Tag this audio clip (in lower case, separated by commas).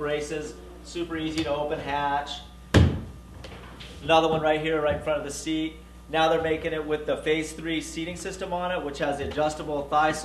speech